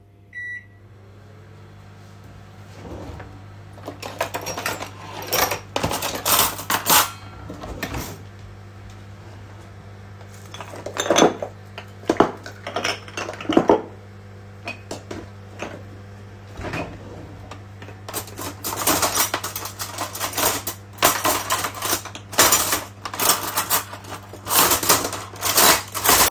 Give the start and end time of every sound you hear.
0.3s-26.3s: microwave
2.7s-3.3s: wardrobe or drawer
3.8s-7.4s: cutlery and dishes
7.8s-8.3s: wardrobe or drawer
16.5s-17.5s: wardrobe or drawer
18.0s-26.3s: cutlery and dishes

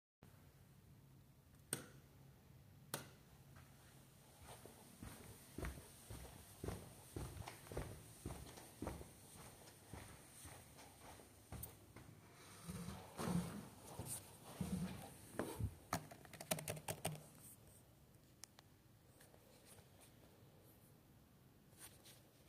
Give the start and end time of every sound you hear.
1.6s-1.9s: light switch
2.8s-3.1s: light switch
4.7s-11.9s: footsteps
15.8s-17.3s: keyboard typing

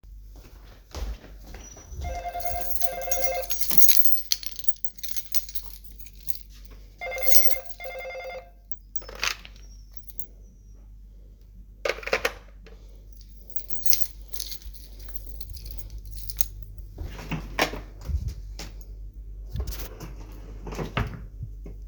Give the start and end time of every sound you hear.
0.2s-3.3s: footsteps
2.0s-3.6s: bell ringing
2.4s-9.1s: keys
7.0s-8.5s: bell ringing
9.9s-10.3s: keys
13.5s-16.6s: keys
17.0s-18.8s: wardrobe or drawer
19.5s-21.3s: wardrobe or drawer

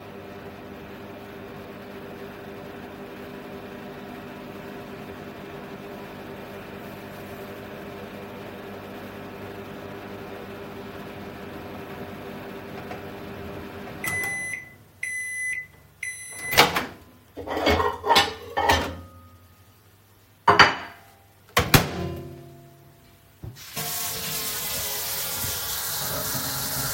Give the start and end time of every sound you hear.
0.0s-17.5s: microwave
17.4s-19.6s: cutlery and dishes
20.3s-21.0s: cutlery and dishes
21.5s-22.9s: microwave
23.6s-26.9s: running water

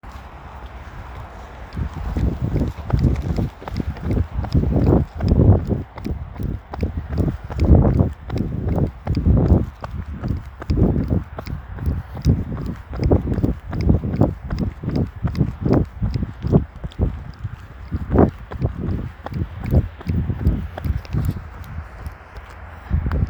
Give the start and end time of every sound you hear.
1.8s-23.3s: footsteps

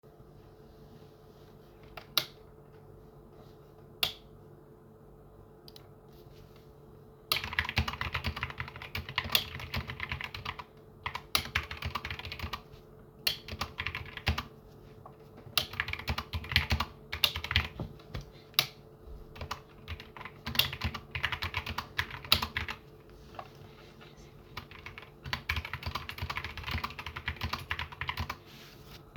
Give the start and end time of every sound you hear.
1.9s-2.4s: light switch
3.9s-4.2s: light switch
7.3s-14.5s: keyboard typing
9.2s-9.5s: light switch
11.2s-11.5s: light switch
13.2s-13.4s: light switch
15.4s-15.8s: light switch
15.7s-17.7s: keyboard typing
17.2s-17.4s: light switch
18.5s-18.7s: light switch
19.4s-22.8s: keyboard typing
20.5s-20.8s: light switch
22.2s-22.5s: light switch
24.5s-28.4s: keyboard typing

